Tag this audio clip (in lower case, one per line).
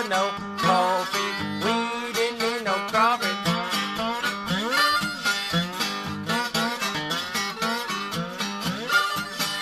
music